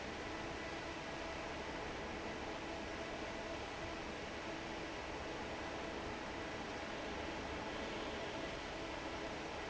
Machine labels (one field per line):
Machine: fan